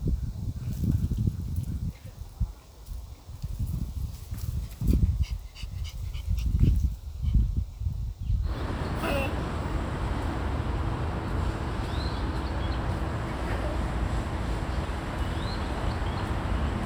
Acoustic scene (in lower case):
park